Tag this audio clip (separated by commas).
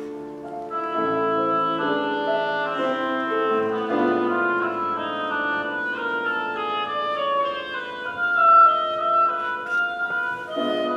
Classical music, inside a large room or hall, Music